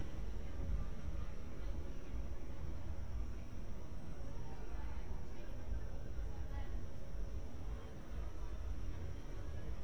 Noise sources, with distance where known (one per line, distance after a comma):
person or small group talking, far